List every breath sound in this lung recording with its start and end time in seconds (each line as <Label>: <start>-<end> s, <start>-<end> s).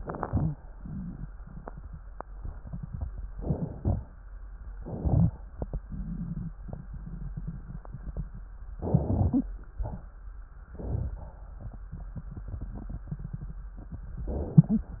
Inhalation: 3.26-3.79 s, 4.78-5.31 s, 8.78-9.46 s, 10.73-11.17 s, 14.25-14.68 s
Exhalation: 0.00-0.55 s, 3.78-4.31 s, 9.68-10.11 s, 11.18-11.61 s
Crackles: 0.00-0.55 s, 4.78-5.27 s, 8.74-9.46 s